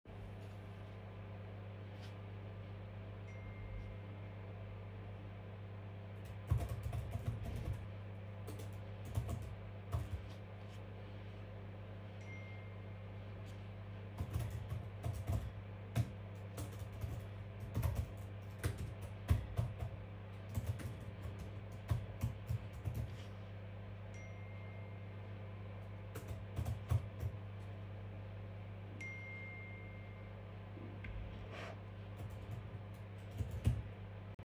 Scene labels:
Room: living room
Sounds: microwave, phone ringing, keyboard typing

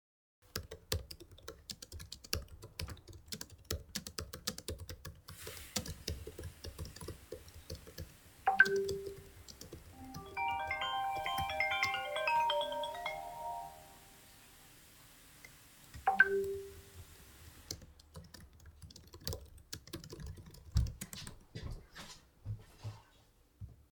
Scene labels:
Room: bedroom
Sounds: keyboard typing, running water, phone ringing, footsteps

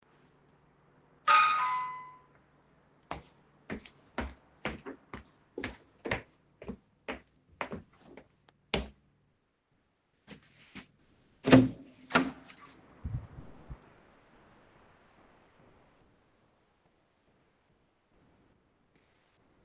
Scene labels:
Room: hallway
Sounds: bell ringing, footsteps, door

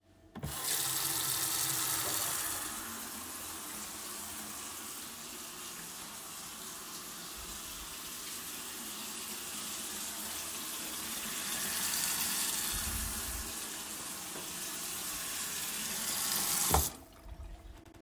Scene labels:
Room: kitchen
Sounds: running water

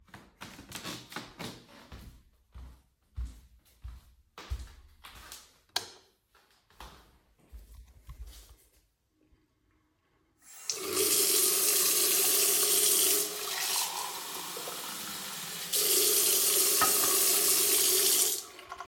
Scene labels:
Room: living room, bathroom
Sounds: footsteps, light switch, running water

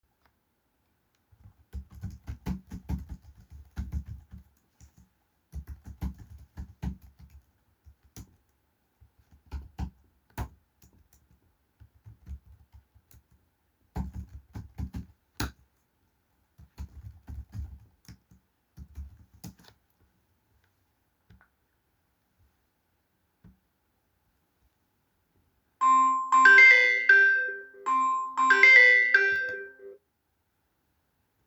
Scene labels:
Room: bedroom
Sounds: keyboard typing, phone ringing

